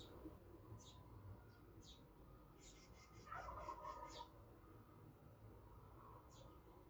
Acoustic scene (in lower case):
park